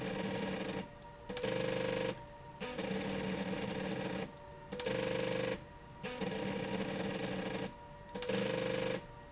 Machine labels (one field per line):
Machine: slide rail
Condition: abnormal